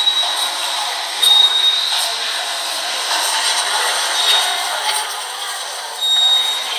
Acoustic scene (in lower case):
subway station